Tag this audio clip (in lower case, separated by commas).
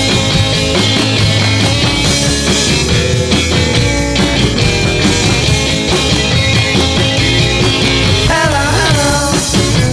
music, dance music, rhythm and blues